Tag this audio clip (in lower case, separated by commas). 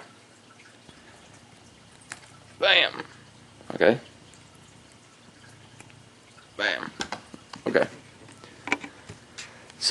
speech, television